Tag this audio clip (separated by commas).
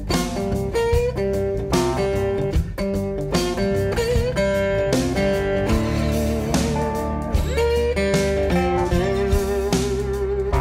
Music